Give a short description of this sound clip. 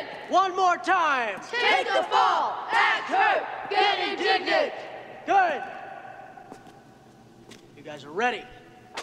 A person speaks then people chant together and the person speaks again